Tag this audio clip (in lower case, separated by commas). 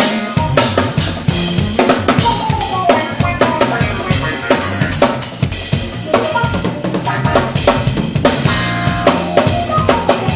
rimshot, bass drum, snare drum, drum roll, percussion, drum kit, drum